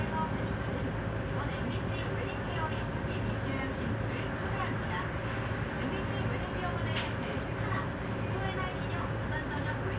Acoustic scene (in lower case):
bus